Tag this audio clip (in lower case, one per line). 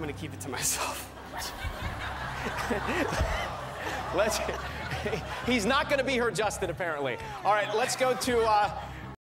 speech